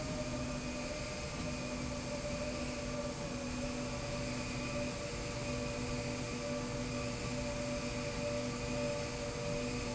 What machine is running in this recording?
slide rail